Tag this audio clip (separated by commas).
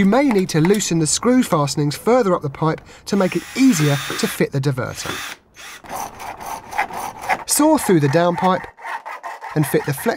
Speech